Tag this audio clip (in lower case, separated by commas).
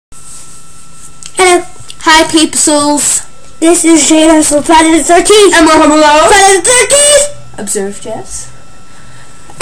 shout, speech